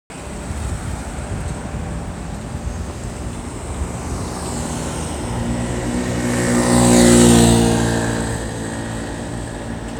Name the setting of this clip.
street